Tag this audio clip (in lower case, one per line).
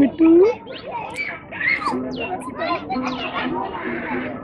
music
speech